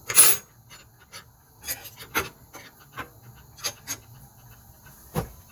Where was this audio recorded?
in a kitchen